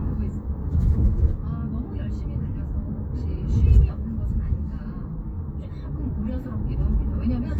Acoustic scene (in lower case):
car